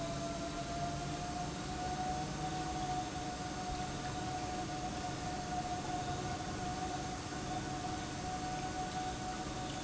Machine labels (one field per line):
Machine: pump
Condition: normal